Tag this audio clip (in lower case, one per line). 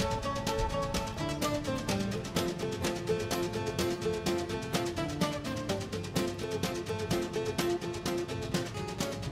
music